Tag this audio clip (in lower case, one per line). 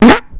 fart